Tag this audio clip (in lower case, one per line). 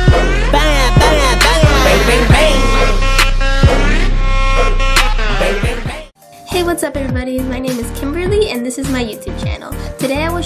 music
speech